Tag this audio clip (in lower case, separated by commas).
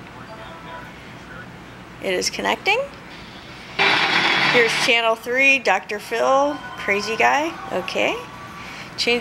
television, speech